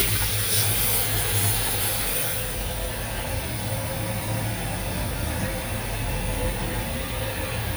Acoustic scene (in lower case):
restroom